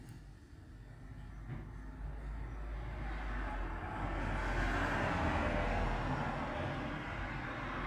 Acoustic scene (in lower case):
street